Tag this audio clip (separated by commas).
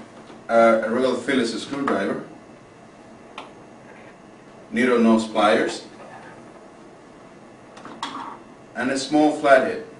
Speech